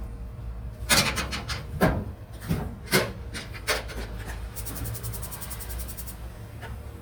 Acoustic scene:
kitchen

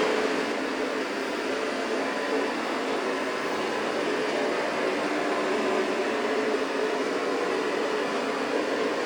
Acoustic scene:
street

